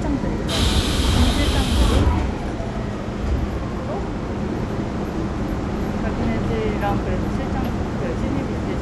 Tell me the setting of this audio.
subway train